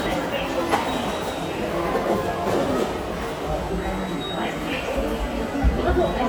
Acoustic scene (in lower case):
subway station